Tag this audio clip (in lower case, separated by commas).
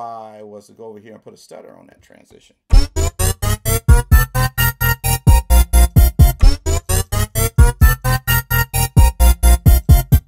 synthesizer, speech